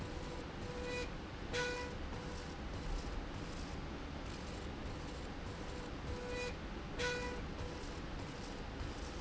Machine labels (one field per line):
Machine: slide rail